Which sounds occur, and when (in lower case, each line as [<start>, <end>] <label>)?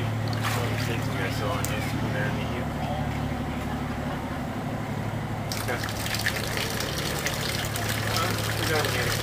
[0.00, 9.22] heavy engine (low frequency)
[0.39, 0.98] water
[0.43, 9.22] conversation
[0.43, 0.96] male speech
[1.11, 1.89] male speech
[2.09, 3.10] male speech
[5.46, 9.22] water
[5.64, 5.89] male speech
[8.12, 8.27] male speech
[8.65, 9.22] male speech